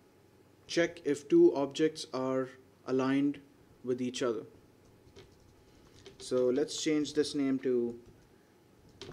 A man delivering a speech